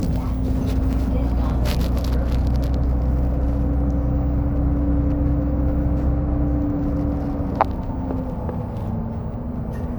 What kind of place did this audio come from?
bus